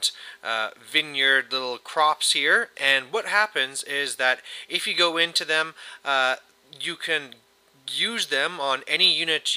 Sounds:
speech

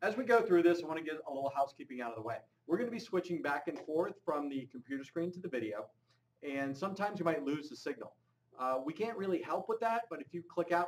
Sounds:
speech

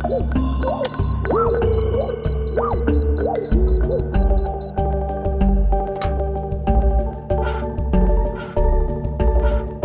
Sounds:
video game music
music

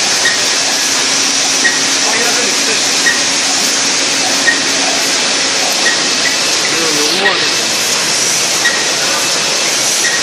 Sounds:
speech

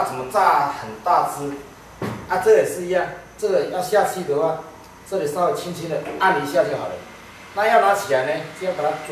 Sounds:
speech

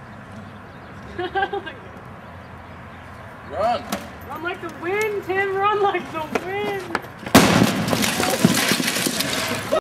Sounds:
speech

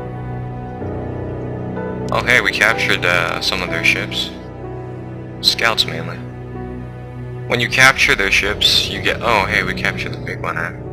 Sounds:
speech
music

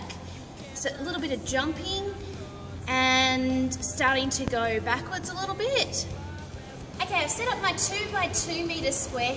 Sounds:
speech
music

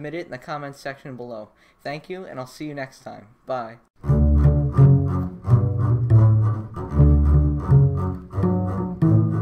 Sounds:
cello
pizzicato
bowed string instrument
double bass

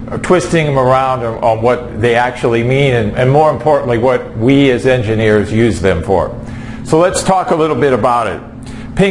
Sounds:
speech

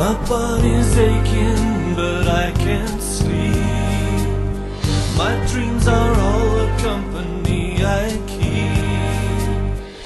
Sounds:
music

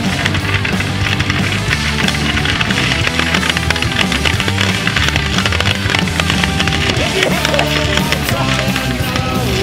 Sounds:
lighting firecrackers

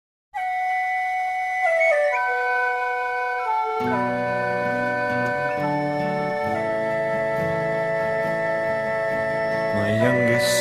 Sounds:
music

